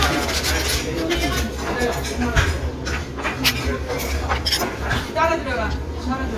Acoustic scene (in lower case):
restaurant